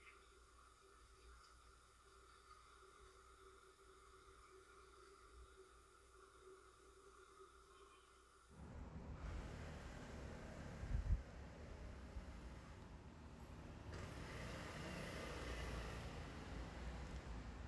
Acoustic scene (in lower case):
residential area